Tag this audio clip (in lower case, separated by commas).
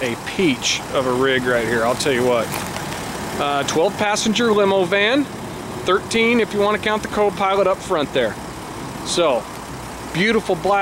speech